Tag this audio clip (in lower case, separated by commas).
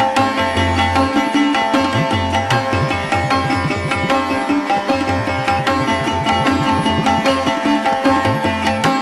music, classical music